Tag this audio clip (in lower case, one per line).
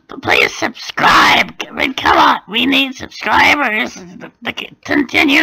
speech